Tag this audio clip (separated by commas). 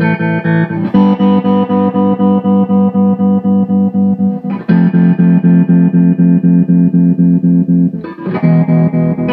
Music, Musical instrument